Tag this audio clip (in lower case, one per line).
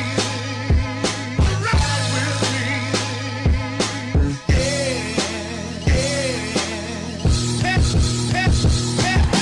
music